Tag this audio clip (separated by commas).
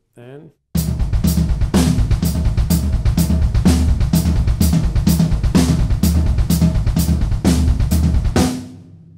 Bass drum, Snare drum, Speech, Drum kit, Drum, Music, Hi-hat, Musical instrument, Cymbal